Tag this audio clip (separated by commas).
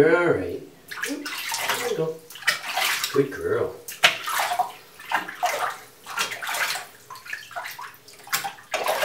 Water